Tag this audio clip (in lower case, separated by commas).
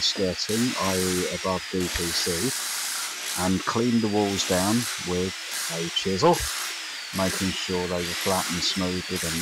speech